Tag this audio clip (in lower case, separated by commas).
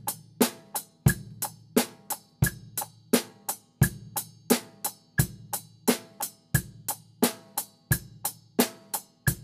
music, cymbal, drum, hi-hat, musical instrument, drum kit